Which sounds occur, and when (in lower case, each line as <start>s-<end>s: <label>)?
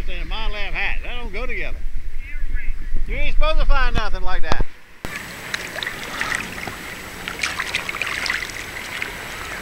0.0s-1.7s: male speech
0.0s-9.6s: wind
2.1s-2.9s: male speech
3.0s-4.7s: male speech
5.0s-9.6s: water
6.0s-6.4s: breathing
6.6s-6.7s: tick
9.2s-9.6s: speech